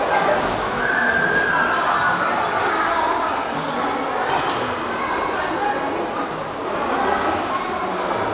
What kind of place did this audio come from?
crowded indoor space